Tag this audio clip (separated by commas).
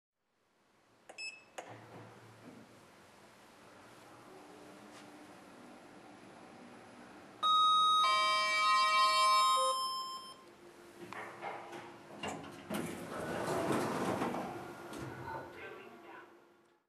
Door, Sliding door, home sounds